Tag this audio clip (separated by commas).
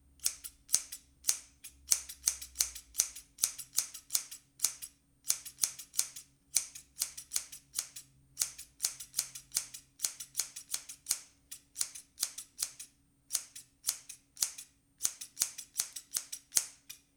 home sounds, Scissors